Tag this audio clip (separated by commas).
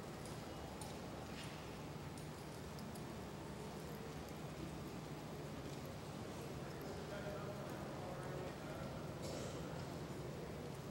Animal, Horse, Clip-clop, Speech